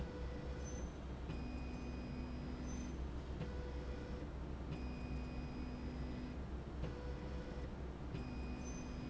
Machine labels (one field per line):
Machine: slide rail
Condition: normal